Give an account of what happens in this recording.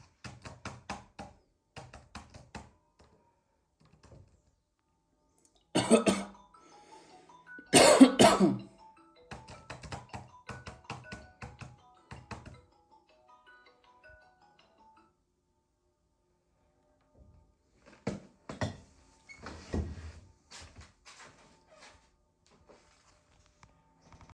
I am working on my laptop, making report. The phone rings, and I keep it on silent, and walk away from the workspace to get the call.